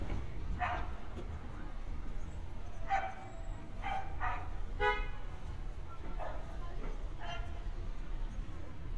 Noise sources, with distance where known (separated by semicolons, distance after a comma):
car horn, near; unidentified human voice, near; dog barking or whining, near